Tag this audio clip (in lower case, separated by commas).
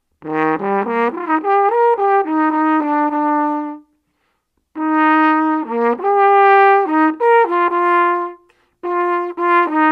playing french horn, musical instrument, music, trombone, brass instrument, french horn